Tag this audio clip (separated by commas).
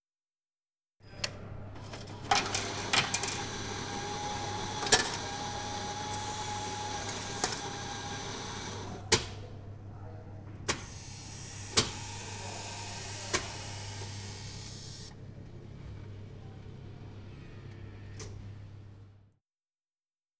Domestic sounds, Coin (dropping)